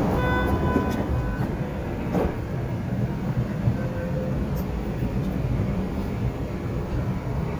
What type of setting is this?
subway station